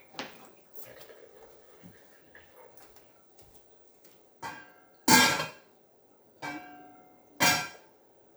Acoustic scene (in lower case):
kitchen